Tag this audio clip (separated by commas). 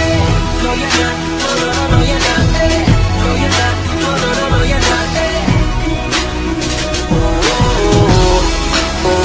Singing, Music